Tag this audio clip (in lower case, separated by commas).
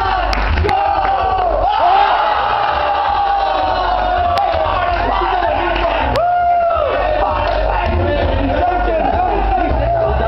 music, inside a large room or hall, speech